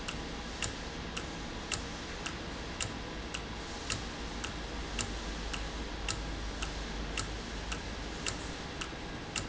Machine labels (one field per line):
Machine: valve